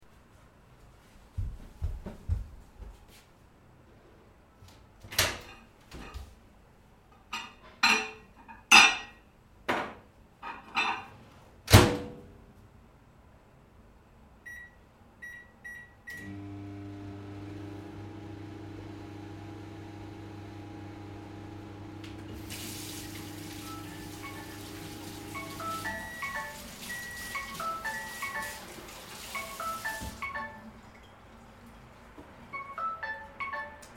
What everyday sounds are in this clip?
footsteps, microwave, cutlery and dishes, running water, phone ringing